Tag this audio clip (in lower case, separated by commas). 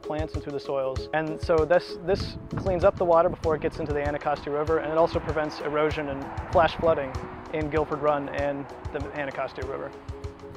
music, speech